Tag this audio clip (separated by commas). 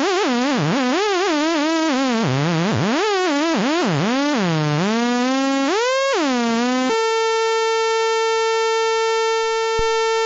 Sound effect